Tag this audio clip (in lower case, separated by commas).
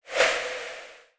swoosh